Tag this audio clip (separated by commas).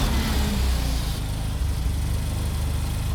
Engine